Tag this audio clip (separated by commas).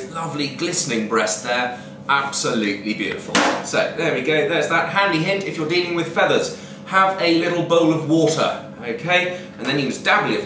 Speech